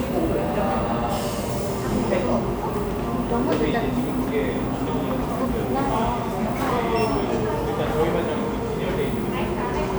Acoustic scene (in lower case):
cafe